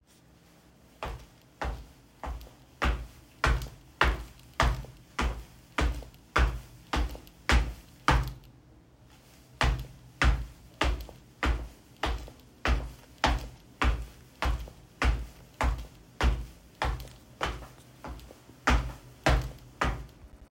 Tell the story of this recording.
I walked in place across the bedroom. My footsteps are clearly audible while the phone remained on the table.